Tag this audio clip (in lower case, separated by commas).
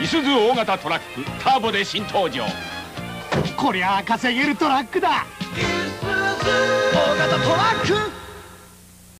speech, music